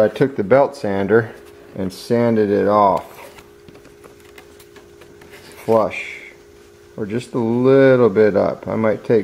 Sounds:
speech

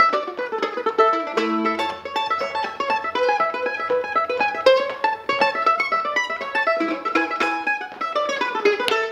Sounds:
plucked string instrument, music, mandolin, musical instrument

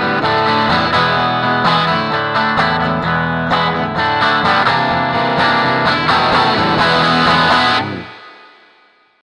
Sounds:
acoustic guitar, strum, musical instrument, guitar, plucked string instrument, music

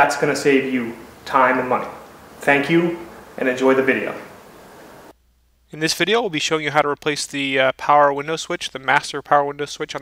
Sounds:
speech

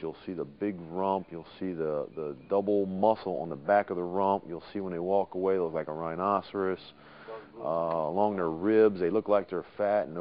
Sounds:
speech

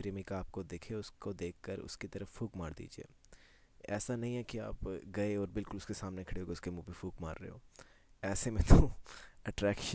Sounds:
speech

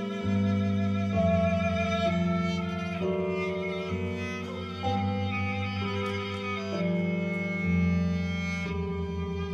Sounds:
music, musical instrument

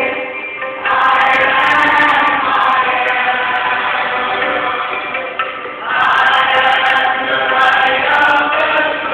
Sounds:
mantra, music

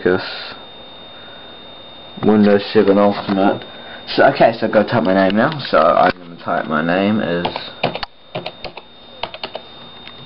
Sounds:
inside a small room, speech

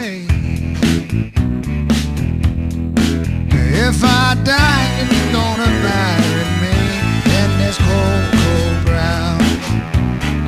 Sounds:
music, blues, male singing

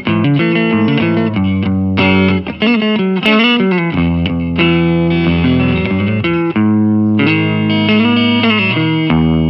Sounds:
acoustic guitar, guitar, plucked string instrument, strum, musical instrument, music

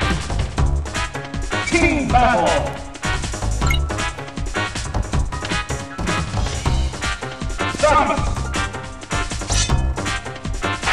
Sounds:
speech, music

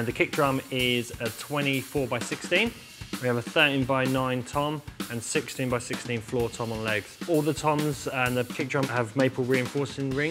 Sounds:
drum kit, drum, speech, music

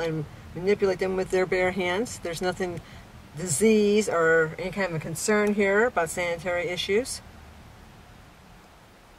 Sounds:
speech

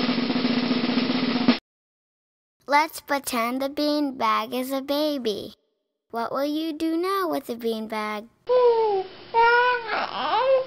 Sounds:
music, speech

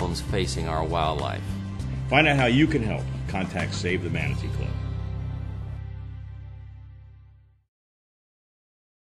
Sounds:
speech, music

